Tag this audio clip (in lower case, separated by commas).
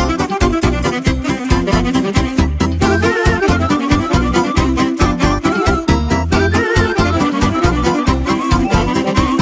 music, saxophone